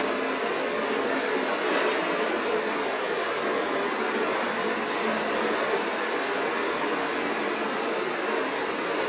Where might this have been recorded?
on a street